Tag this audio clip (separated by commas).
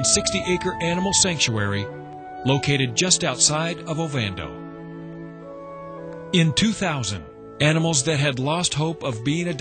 Music, Speech